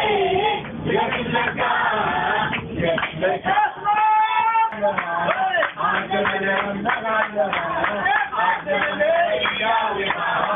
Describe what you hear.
Group singing continuously